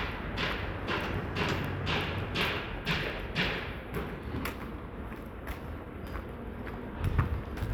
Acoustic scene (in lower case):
residential area